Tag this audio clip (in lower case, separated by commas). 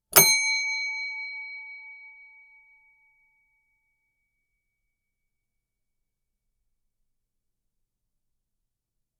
bell